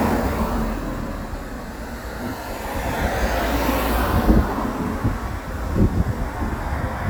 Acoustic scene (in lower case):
street